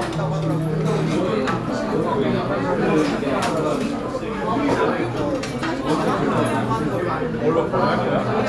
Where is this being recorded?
in a restaurant